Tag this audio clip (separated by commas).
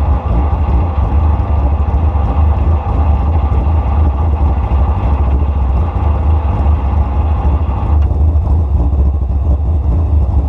Vehicle, Car